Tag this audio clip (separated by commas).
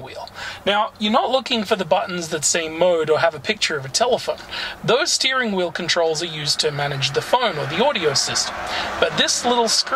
Speech